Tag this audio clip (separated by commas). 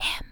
Human voice, Speech, Whispering